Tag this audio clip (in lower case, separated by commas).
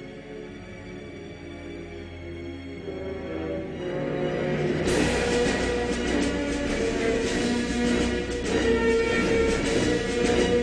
music